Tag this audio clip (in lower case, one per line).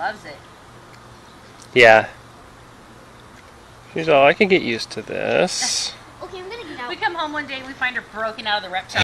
speech